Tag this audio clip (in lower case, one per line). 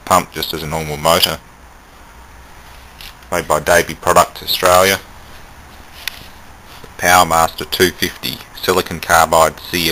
speech